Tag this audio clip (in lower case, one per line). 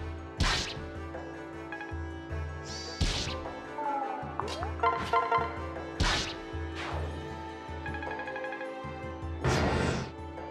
music